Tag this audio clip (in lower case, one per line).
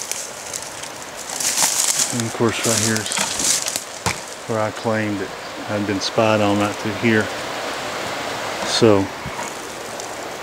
speech
waterfall